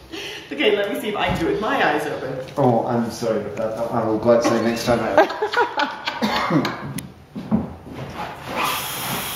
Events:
[0.00, 0.39] breathing
[0.00, 9.35] mechanisms
[0.44, 2.46] female speech
[0.50, 5.22] conversation
[1.24, 1.42] footsteps
[2.38, 2.44] tick
[2.45, 5.25] male speech
[3.46, 3.55] tick
[4.97, 7.03] laughter
[6.17, 6.67] cough
[6.88, 7.09] footsteps
[7.26, 7.68] footsteps
[7.81, 8.16] footsteps
[7.82, 9.35] sniff

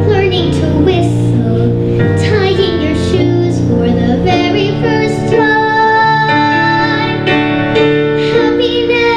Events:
[0.00, 1.75] child singing
[0.00, 9.15] music
[2.17, 7.30] child singing
[8.16, 9.15] child singing

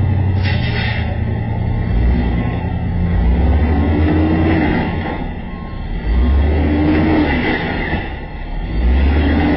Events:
[0.00, 9.55] truck
[0.36, 1.04] air brake
[1.65, 1.97] reversing beeps
[2.27, 2.60] reversing beeps
[3.90, 5.20] vroom
[4.84, 5.20] reversing beeps
[5.42, 5.76] reversing beeps
[6.08, 6.42] reversing beeps
[6.13, 8.02] vroom
[8.65, 9.55] vroom

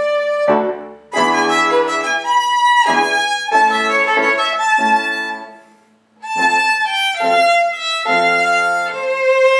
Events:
[0.00, 5.95] music
[0.00, 9.55] background noise
[6.19, 9.55] music

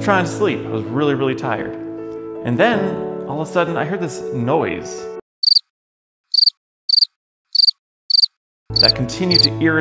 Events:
[0.00, 5.15] music
[0.01, 1.71] male speech
[2.40, 2.94] male speech
[3.24, 4.18] male speech
[4.33, 5.12] male speech
[5.39, 5.64] cricket
[6.28, 6.52] cricket
[6.88, 7.09] cricket
[7.49, 7.73] cricket
[8.08, 8.31] cricket
[8.63, 9.80] music
[8.72, 8.92] cricket
[8.73, 9.80] male speech
[9.29, 9.50] cricket

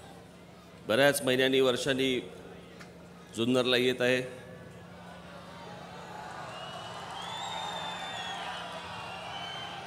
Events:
[0.00, 9.85] crowd
[0.87, 2.21] male speech
[2.71, 2.89] generic impact sounds
[3.29, 4.24] male speech
[6.50, 9.85] whistling

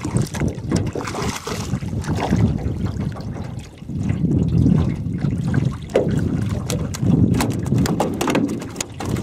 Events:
[0.00, 3.52] wind noise (microphone)
[0.00, 9.22] water
[0.00, 9.22] wind
[0.31, 0.46] generic impact sounds
[0.67, 0.92] generic impact sounds
[0.72, 1.74] splatter
[2.03, 2.55] splatter
[3.89, 9.22] wind noise (microphone)
[5.93, 6.21] generic impact sounds
[6.66, 9.22] generic impact sounds

